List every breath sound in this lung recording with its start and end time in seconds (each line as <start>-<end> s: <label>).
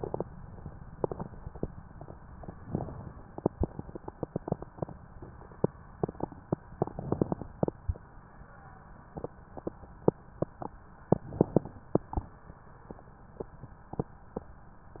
2.63-3.28 s: inhalation
2.63-3.28 s: crackles
6.67-7.48 s: inhalation
6.67-7.48 s: crackles
11.08-11.89 s: inhalation
11.08-11.89 s: crackles